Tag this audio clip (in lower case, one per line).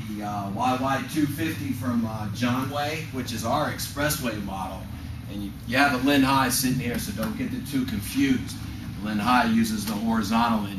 speech